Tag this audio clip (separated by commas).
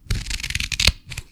Scissors, Domestic sounds